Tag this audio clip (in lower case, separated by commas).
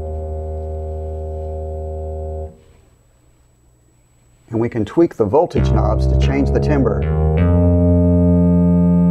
music, synthesizer, musical instrument, sampler, speech